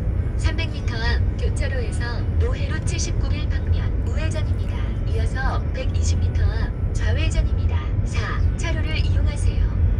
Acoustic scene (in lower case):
car